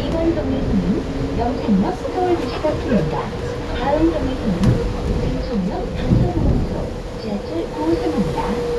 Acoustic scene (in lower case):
bus